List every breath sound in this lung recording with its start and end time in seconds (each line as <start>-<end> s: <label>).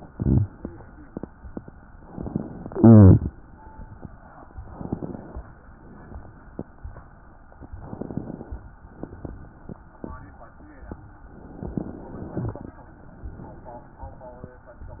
4.63-5.41 s: inhalation
5.75-6.53 s: exhalation
7.80-8.58 s: inhalation
8.90-9.68 s: exhalation
11.35-12.35 s: inhalation